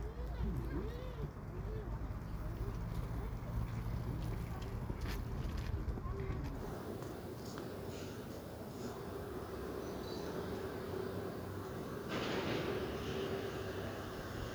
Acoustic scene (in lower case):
residential area